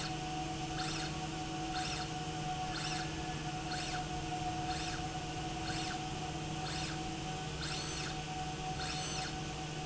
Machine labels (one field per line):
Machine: slide rail